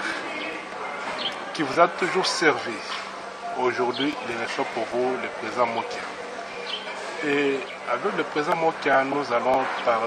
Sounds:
Speech

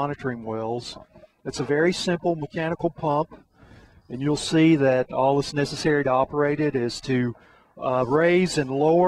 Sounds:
Speech

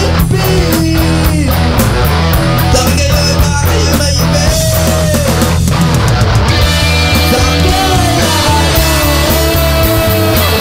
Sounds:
Music

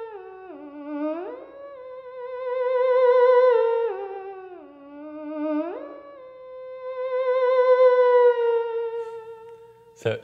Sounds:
playing theremin

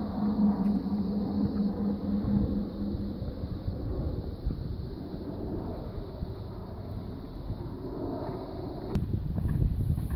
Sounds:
Animal, Clip-clop

